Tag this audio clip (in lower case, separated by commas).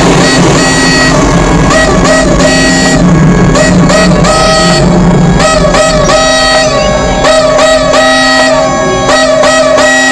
music